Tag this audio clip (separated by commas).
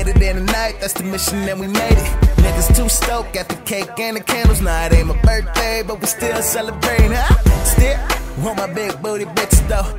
Music